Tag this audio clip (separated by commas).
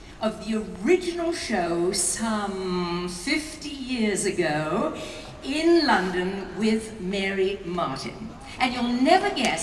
Speech